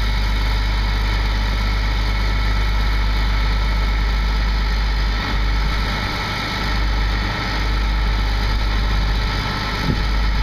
An engine is idling then revs up a little